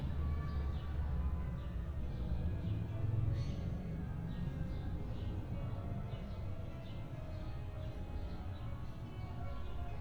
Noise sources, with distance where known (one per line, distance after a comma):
music from an unclear source